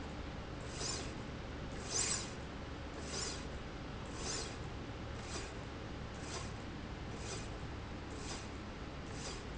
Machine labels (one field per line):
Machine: slide rail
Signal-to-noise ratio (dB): 0 dB